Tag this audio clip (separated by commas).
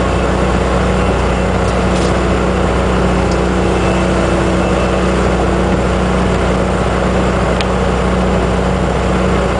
Vehicle, Motorboat